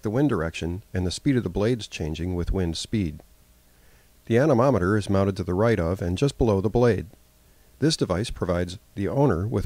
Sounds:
Speech

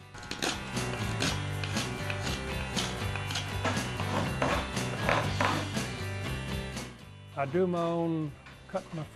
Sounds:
Musical instrument, Plucked string instrument, Music, Speech, Guitar

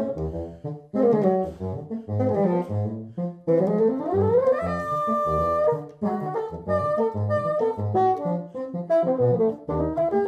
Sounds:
playing bassoon

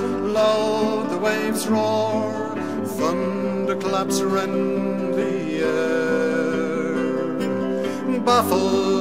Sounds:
Music

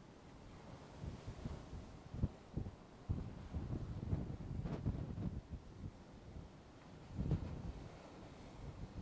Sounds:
Waves, Ocean

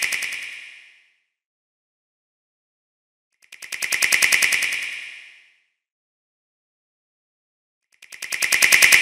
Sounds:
mouse clicking

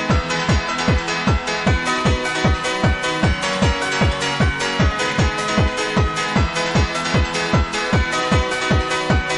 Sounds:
Electronic music, Music, Techno

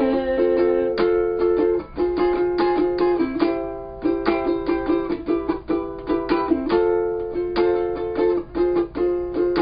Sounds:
Musical instrument, Plucked string instrument, Music, Ukulele, Bowed string instrument, Guitar

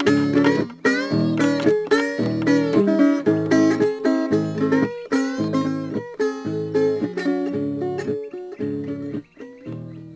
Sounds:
playing steel guitar

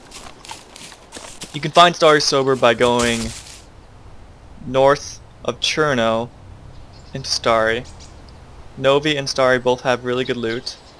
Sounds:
Speech

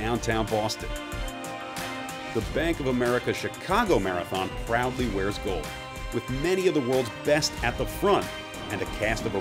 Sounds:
outside, urban or man-made, Speech, Music

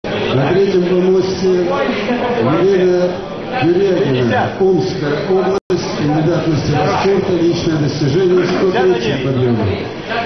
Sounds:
Male speech

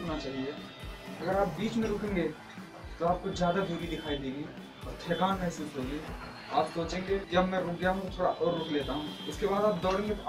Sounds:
man speaking, Music, Speech

